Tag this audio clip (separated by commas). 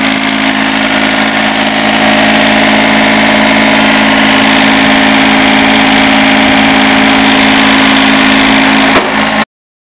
Heavy engine (low frequency), Idling, Vehicle, Medium engine (mid frequency), Engine